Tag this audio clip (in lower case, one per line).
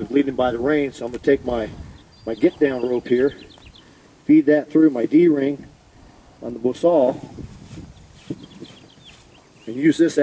speech